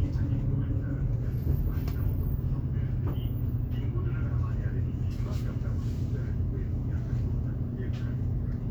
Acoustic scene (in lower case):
bus